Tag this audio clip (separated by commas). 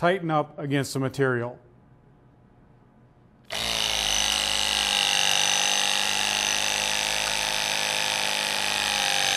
Speech, Power tool, Tools